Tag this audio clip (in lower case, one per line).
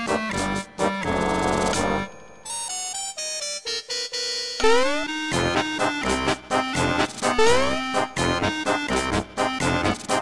music